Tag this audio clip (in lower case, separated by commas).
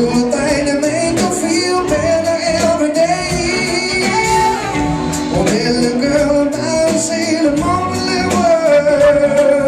male singing, music